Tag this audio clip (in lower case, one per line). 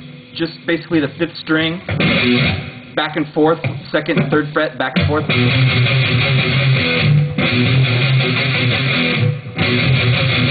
plucked string instrument
strum
music
guitar
electric guitar
musical instrument